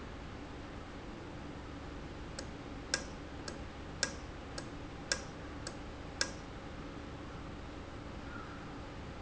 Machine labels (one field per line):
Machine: valve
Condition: normal